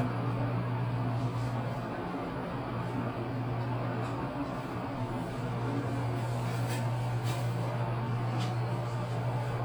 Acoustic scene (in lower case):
elevator